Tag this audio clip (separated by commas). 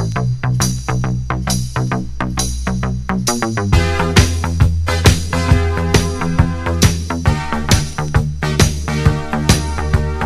Music